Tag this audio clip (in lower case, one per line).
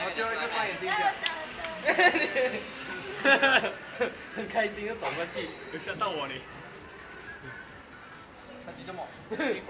speech
music